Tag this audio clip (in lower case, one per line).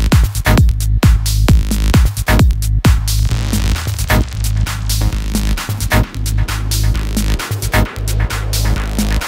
music